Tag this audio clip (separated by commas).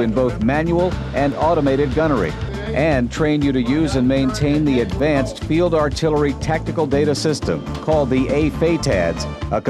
inside a large room or hall, Speech, Music